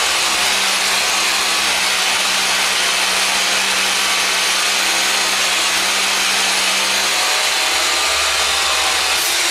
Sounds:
Tools, Power tool

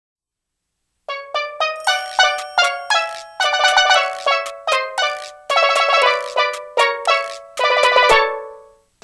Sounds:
Music

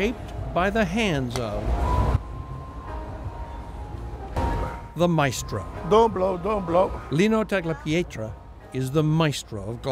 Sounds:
Music, Speech

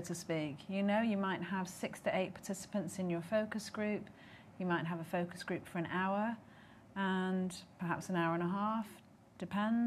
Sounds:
Speech

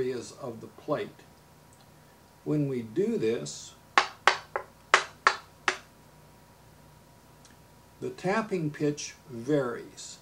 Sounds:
Speech

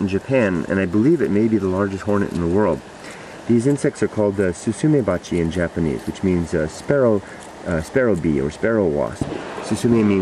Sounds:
Speech

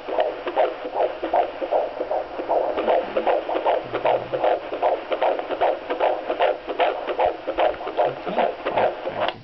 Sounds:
Speech

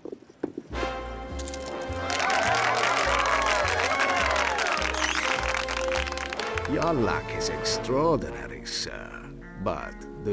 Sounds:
Music, Speech

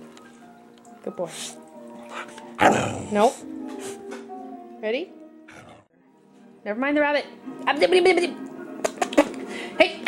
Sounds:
Yip, Music, Speech, pets, Dog

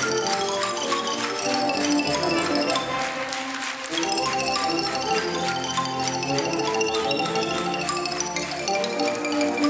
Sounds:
playing glockenspiel

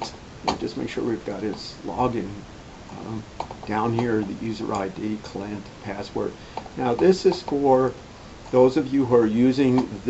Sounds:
Speech

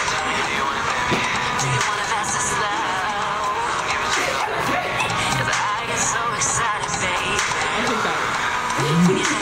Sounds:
Music, Speech

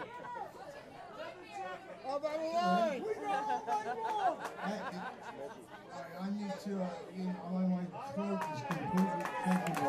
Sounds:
Speech

